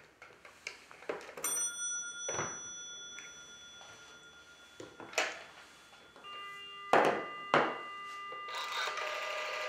A single ring of a bell with some clicking and banging